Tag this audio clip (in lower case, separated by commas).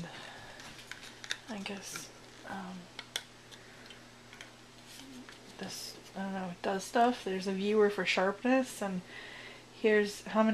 speech